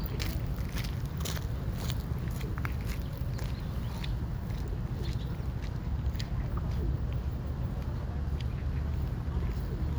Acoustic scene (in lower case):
park